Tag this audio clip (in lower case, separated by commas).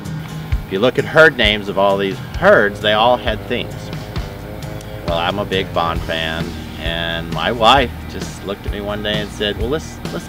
music, speech